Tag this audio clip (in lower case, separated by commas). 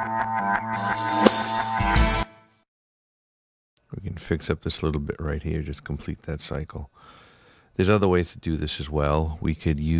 speech, music